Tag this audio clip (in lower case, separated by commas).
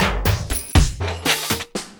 music, drum kit, musical instrument, percussion